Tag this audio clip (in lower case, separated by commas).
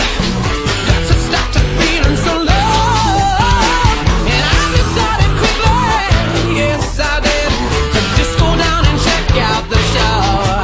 music